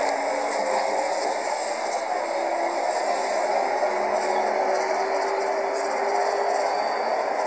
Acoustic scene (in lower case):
bus